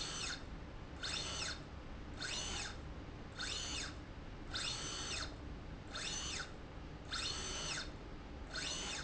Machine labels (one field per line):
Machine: slide rail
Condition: normal